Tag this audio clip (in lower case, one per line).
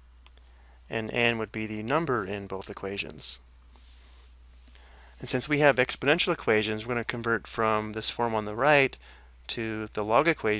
speech